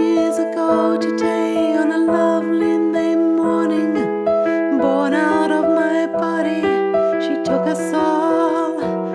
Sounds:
Music

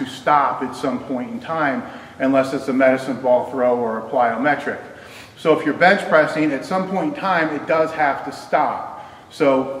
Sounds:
Speech, inside a large room or hall

